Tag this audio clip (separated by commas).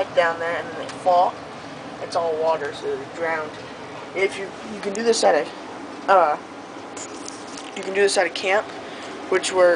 inside a small room, Speech